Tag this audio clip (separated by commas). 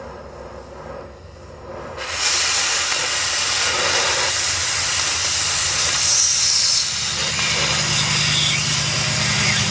Hiss